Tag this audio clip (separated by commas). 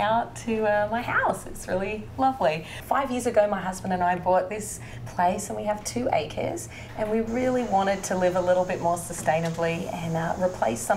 Speech